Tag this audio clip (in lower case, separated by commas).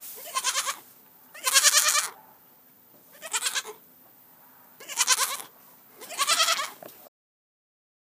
animal, livestock